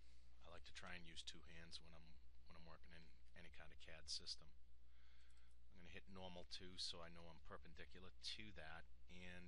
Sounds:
Speech

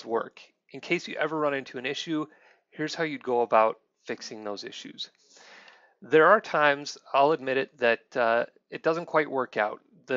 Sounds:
Speech

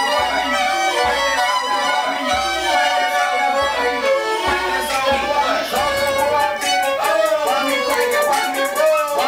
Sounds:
Music, Musical instrument, fiddle

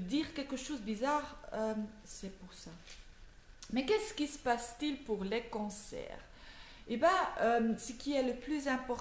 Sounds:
Speech

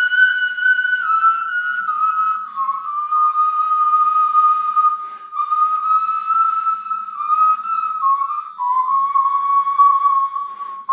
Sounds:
Flute, Music

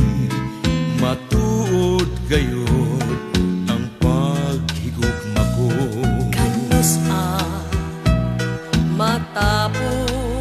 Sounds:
Music

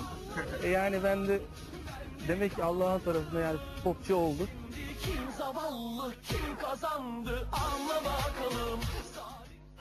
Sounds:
Music, Speech

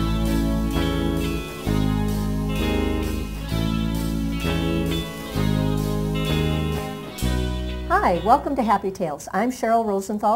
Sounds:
Music, Speech

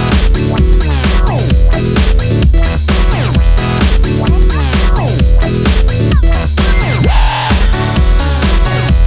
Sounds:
Music, Synthesizer

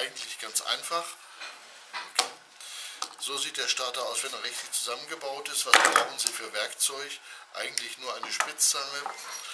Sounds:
Speech

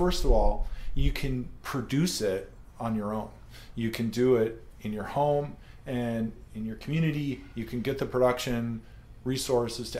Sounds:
Speech

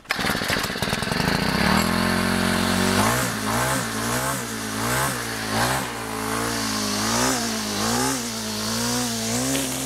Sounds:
hedge trimmer running

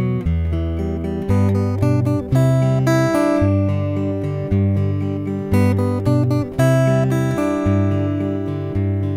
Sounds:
Music, Acoustic guitar

